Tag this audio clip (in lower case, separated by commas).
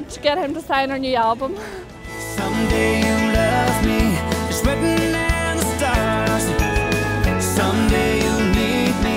music, speech